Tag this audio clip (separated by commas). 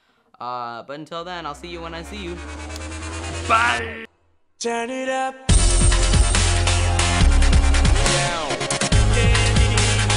Dubstep